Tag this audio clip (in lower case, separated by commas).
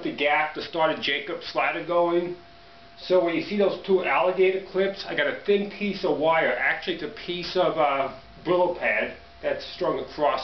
speech